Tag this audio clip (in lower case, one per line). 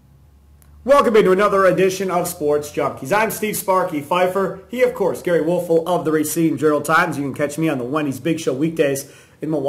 speech